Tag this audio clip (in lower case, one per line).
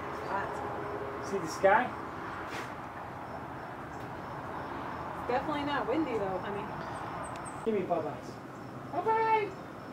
speech